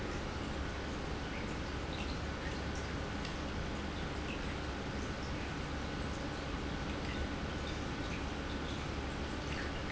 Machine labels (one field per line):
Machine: pump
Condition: normal